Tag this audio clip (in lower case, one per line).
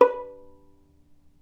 bowed string instrument
music
musical instrument